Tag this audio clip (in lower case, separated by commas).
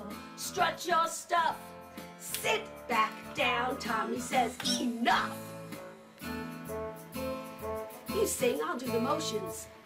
music, speech